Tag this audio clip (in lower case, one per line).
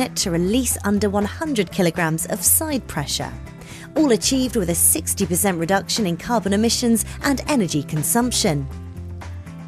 speech
music